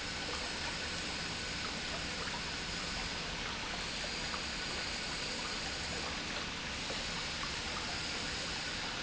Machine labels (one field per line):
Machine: pump